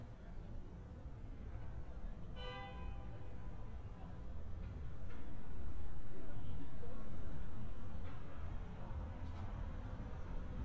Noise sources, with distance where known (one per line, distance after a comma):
car horn